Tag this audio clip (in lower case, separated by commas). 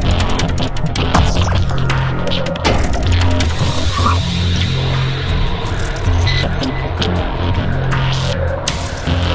throbbing, music